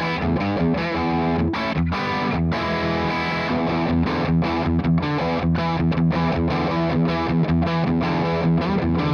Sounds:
guitar
plucked string instrument
musical instrument
music

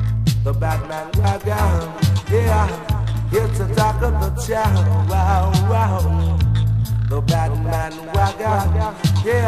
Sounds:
music

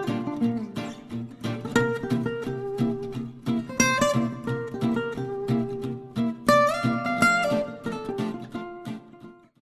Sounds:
music

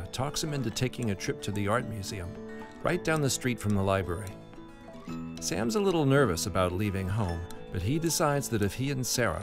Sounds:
speech
music

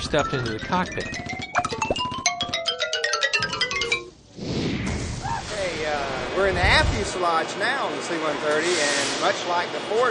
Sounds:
xylophone
speech

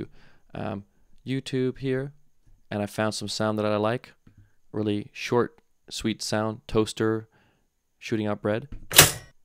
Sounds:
speech

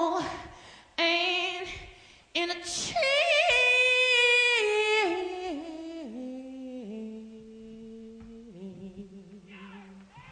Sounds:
singing
inside a large room or hall

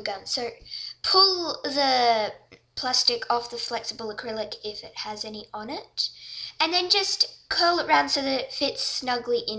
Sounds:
speech

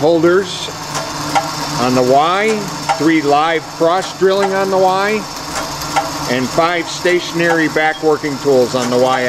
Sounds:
tools
speech

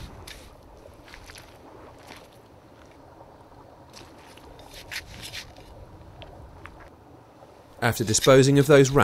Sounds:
outside, rural or natural
speech

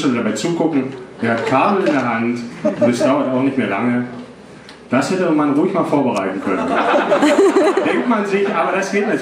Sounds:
speech

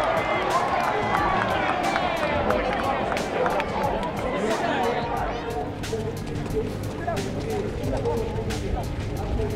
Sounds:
speech
music

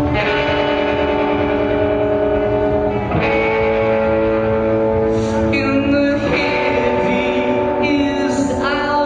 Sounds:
music

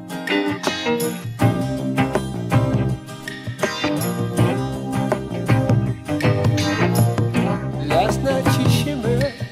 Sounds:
music

